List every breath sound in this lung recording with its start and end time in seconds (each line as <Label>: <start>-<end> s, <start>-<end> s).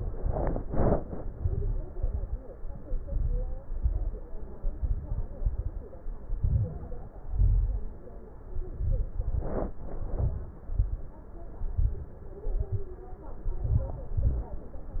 Inhalation: 1.35-1.90 s, 2.56-3.48 s, 4.60-5.32 s, 6.40-7.10 s, 8.46-9.18 s, 9.94-10.66 s, 11.57-12.18 s, 13.44-14.04 s
Exhalation: 1.92-2.47 s, 3.61-4.33 s, 5.34-6.06 s, 7.18-7.88 s, 9.20-9.92 s, 10.66-11.27 s, 12.48-13.09 s, 14.08-14.69 s
Crackles: 1.35-1.90 s, 1.92-2.47 s, 2.56-3.48 s, 3.61-4.33 s, 4.60-5.32 s, 5.34-6.06 s, 6.40-7.10 s, 7.18-7.88 s, 8.46-9.18 s, 9.20-9.92 s, 9.94-10.66 s, 10.66-11.27 s, 11.57-12.18 s, 12.48-13.09 s, 13.44-14.04 s, 14.08-14.69 s